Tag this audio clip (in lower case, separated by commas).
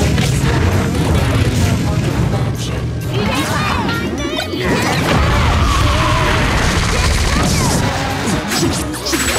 whack